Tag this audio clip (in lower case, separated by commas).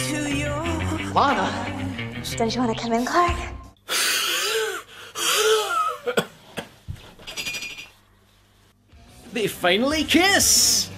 outside, urban or man-made, speech, inside a small room, music